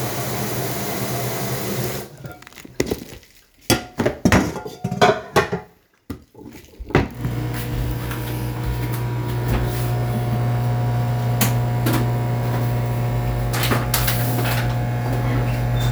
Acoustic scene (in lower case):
kitchen